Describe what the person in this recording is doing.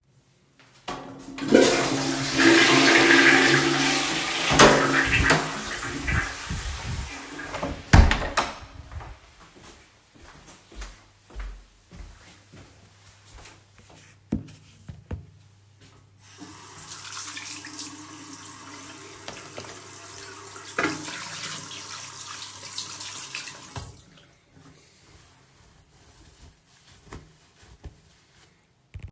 I flush the toilet, I open the door and close the door. After that I go and wash my hands with soap.